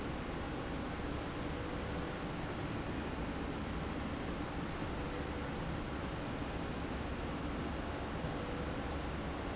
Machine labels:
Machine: slide rail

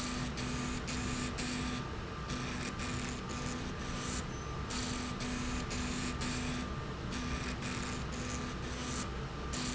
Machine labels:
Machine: slide rail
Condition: abnormal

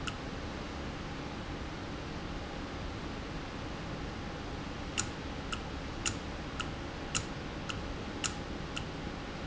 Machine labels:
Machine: valve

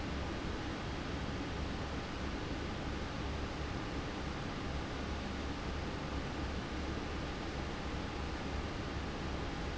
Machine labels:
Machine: fan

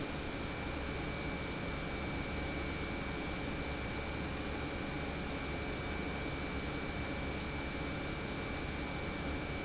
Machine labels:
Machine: pump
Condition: normal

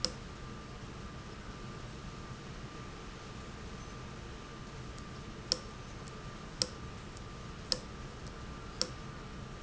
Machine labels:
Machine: valve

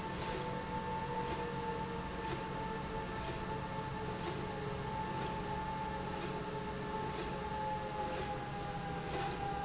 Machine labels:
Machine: slide rail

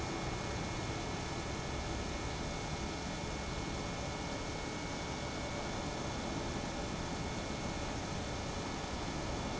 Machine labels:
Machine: pump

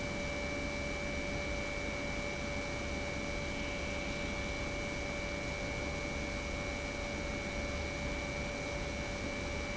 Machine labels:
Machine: pump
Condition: normal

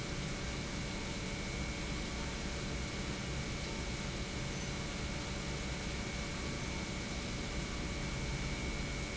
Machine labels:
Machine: pump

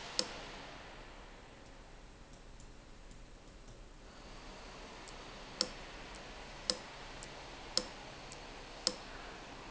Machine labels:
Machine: valve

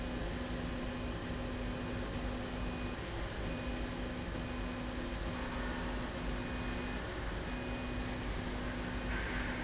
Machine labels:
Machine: slide rail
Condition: normal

